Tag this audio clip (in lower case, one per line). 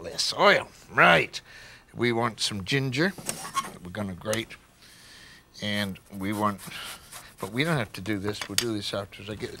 speech